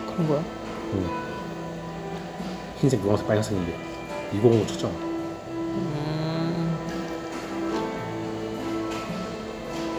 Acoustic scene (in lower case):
cafe